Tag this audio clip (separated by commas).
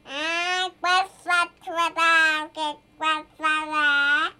Speech, Human voice